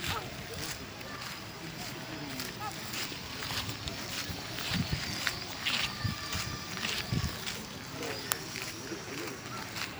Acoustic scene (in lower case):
park